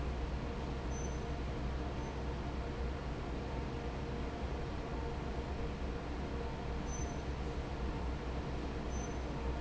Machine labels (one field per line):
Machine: fan